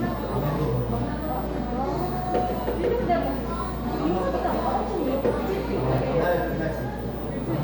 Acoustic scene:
cafe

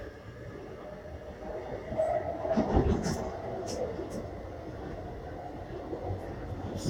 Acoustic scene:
subway train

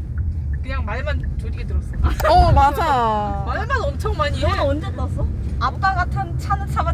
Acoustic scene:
car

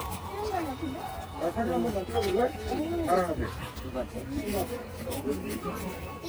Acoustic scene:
park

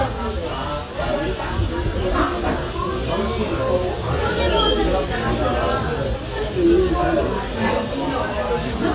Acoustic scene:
restaurant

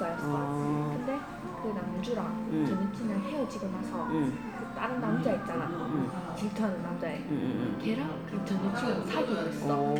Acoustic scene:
crowded indoor space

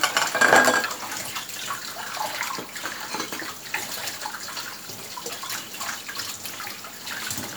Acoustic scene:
kitchen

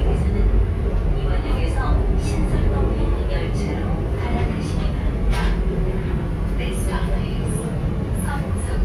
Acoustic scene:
subway train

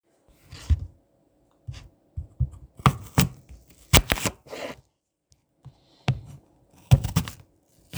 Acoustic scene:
kitchen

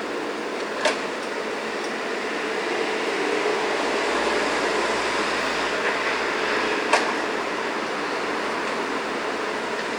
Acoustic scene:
street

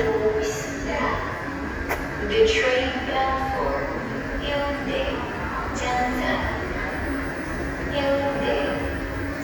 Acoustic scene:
subway station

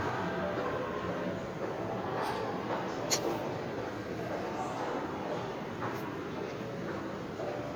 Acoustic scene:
subway station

